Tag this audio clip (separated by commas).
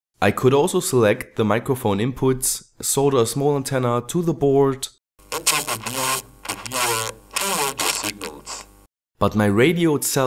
Speech